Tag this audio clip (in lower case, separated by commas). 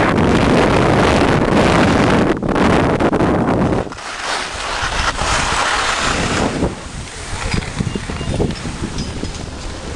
skiing